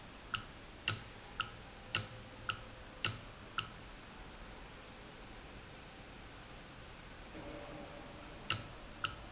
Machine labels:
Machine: valve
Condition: normal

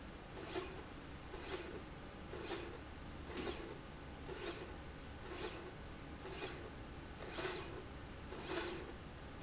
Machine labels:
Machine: slide rail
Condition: normal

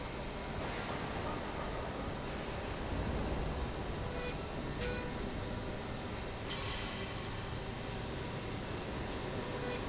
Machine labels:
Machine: slide rail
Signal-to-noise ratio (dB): -6 dB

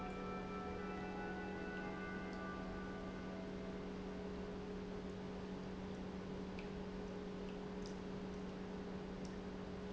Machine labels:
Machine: pump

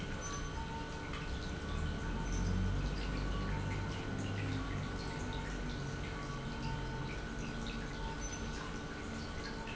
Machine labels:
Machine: pump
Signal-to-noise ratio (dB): -6 dB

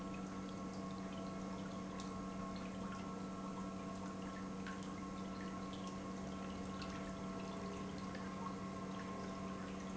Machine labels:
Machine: pump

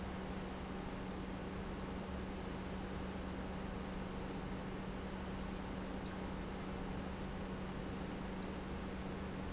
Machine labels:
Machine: pump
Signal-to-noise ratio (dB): 0 dB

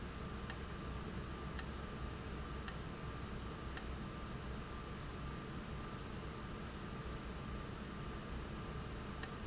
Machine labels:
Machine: valve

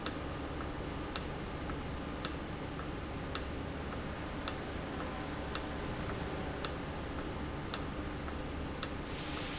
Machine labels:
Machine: valve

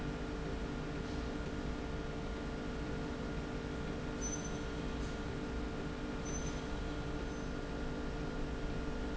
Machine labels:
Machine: slide rail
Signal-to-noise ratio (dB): -6 dB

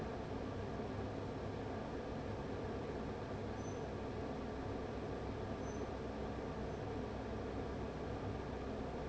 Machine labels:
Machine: fan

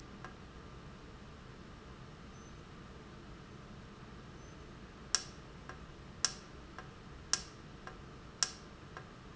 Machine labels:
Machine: valve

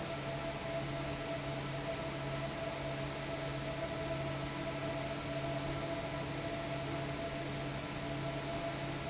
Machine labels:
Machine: fan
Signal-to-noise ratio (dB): -6 dB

